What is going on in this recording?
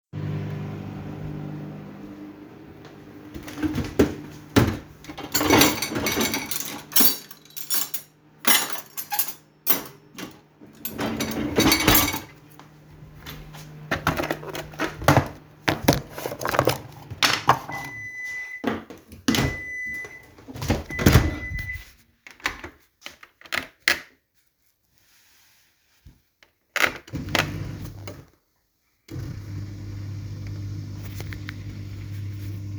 The microwave is running, I opened the dishwasher, put in some cuttlery, opened the wardrobe, got a tab and started the dishwasher.